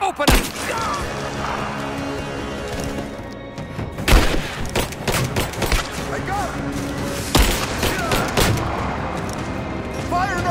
An exchange of gunfire from several sources along with sporadic brief talking from several people